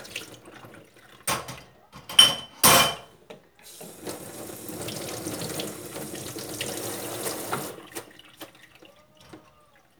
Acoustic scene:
kitchen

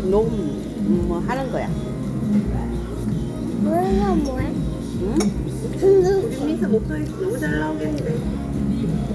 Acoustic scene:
restaurant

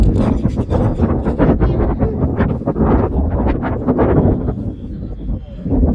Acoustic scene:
residential area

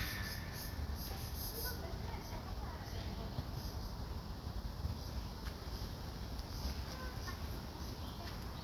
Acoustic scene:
park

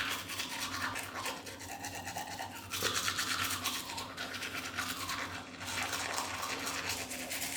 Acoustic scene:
restroom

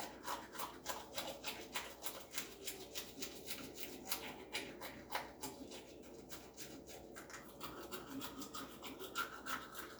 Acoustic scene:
restroom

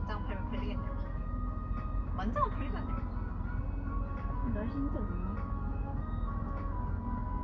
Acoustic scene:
car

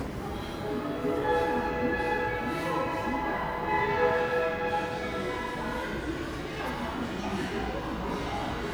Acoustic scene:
subway station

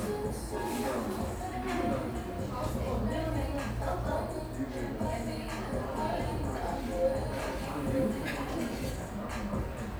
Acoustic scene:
cafe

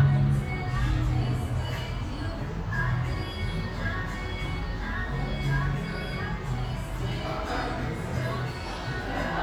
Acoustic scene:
cafe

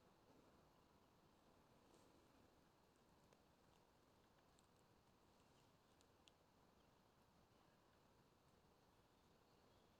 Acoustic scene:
park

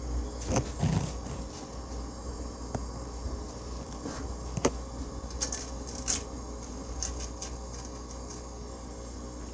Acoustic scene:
kitchen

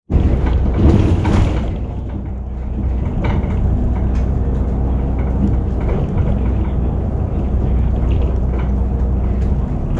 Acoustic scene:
bus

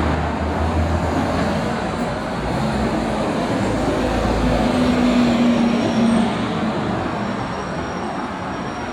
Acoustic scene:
street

